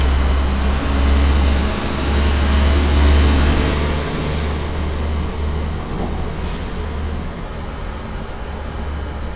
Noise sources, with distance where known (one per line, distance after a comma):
large-sounding engine, near